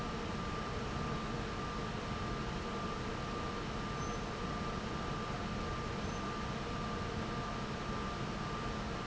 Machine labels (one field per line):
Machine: fan